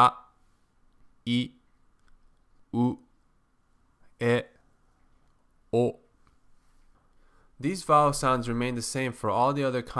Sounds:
speech

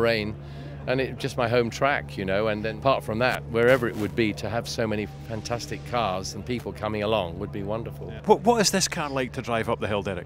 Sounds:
speech

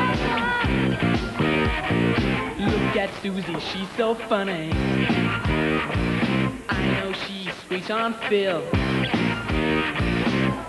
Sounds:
male singing, music, female singing

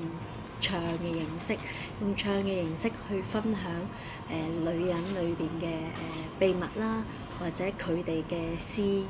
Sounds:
speech

